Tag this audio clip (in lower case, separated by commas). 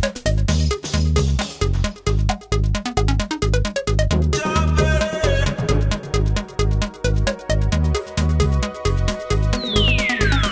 music, electronica